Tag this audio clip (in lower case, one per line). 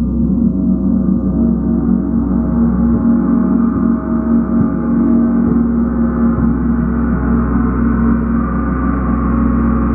playing gong